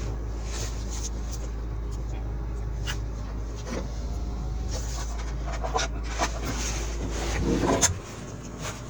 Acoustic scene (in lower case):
car